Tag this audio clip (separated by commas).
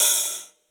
Percussion, Music, Musical instrument, Hi-hat, Cymbal